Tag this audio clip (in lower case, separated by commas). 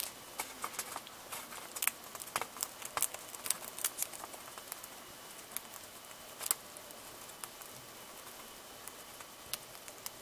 patter